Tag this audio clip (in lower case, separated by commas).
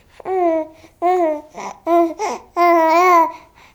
speech, human voice